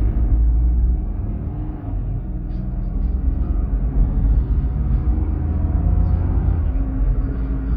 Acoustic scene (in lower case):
car